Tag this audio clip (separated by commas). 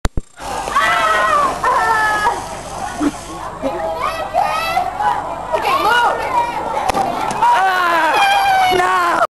Speech